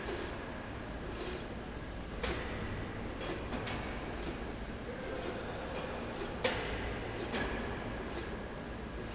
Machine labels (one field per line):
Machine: slide rail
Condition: normal